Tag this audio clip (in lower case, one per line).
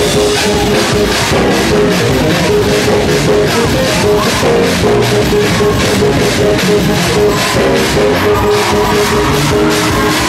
music
gospel music